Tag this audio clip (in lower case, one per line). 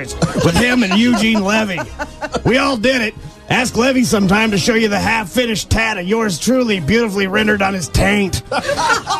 music
speech